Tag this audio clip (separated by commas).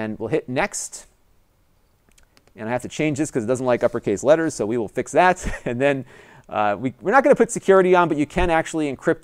Speech